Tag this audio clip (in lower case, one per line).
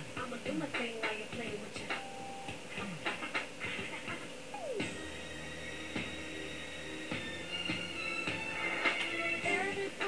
music